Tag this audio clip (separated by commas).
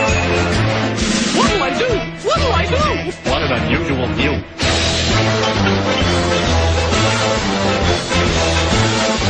Speech, Music